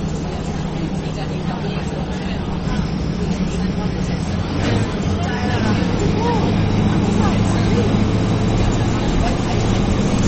Multiples voices speak in the background of a running vehicle